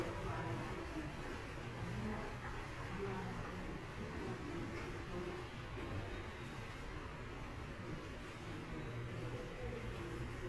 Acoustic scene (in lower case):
subway station